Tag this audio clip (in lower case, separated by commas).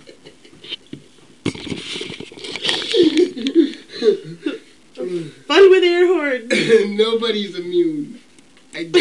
inside a small room, speech